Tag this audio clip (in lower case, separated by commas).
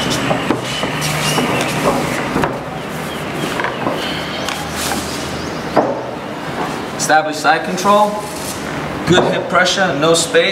inside a large room or hall, speech